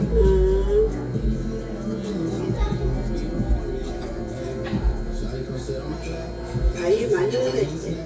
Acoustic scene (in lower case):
crowded indoor space